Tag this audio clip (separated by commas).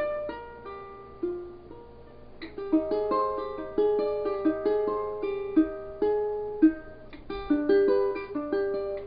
Music, Musical instrument, Acoustic guitar, Guitar, Plucked string instrument